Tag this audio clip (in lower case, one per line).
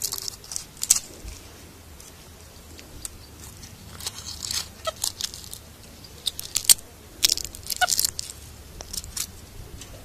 outside, rural or natural